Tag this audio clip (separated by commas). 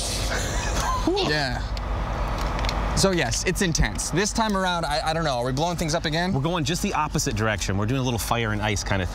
Speech